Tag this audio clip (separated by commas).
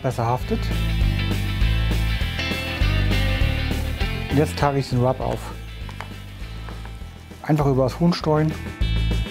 Speech, Music